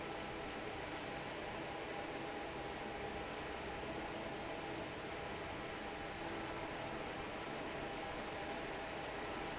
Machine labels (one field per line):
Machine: fan